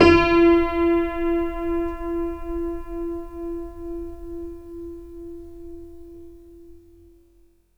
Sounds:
piano
keyboard (musical)
musical instrument
music

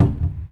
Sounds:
cupboard open or close
domestic sounds

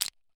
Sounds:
crushing

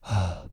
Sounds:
breathing
respiratory sounds

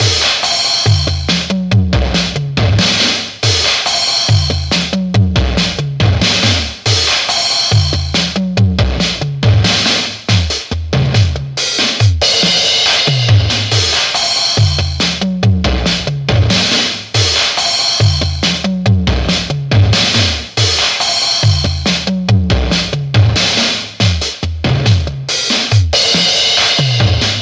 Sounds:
music
musical instrument
percussion
drum kit

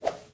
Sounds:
swoosh

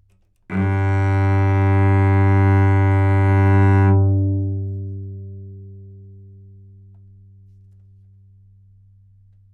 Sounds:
musical instrument
bowed string instrument
music

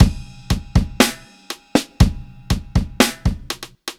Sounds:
music
percussion
drum kit
musical instrument

